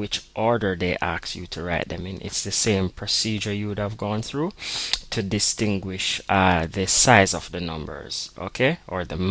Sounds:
speech

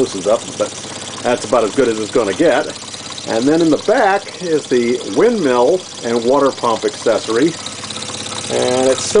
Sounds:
engine, speech

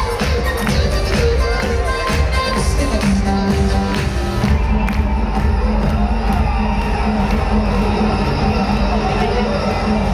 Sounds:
music

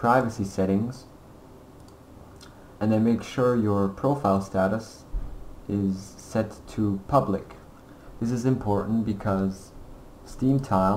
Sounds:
speech

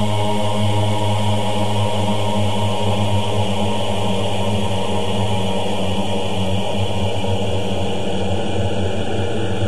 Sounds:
hum

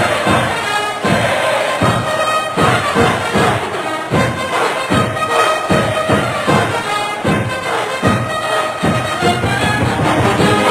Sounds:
music, techno

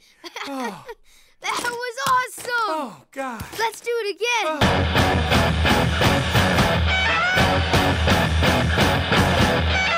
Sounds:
music, speech

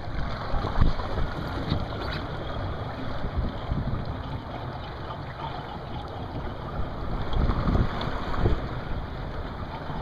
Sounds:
vehicle, sailing ship, sailing, water vehicle

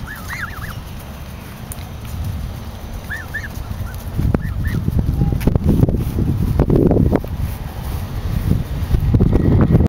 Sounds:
fowl

